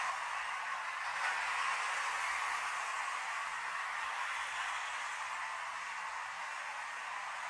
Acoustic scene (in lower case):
street